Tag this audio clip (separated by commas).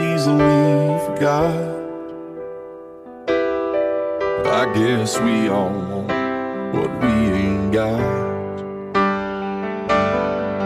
Electric piano, Music